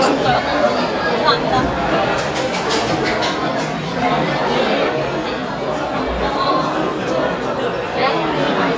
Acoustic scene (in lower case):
restaurant